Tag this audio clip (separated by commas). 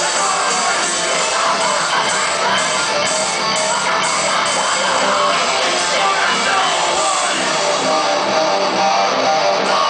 Music